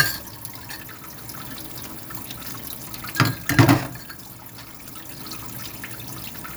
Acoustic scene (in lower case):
kitchen